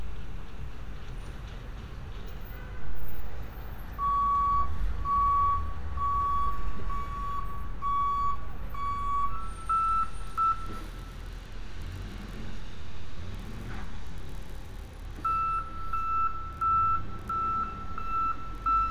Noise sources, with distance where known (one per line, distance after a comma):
reverse beeper, near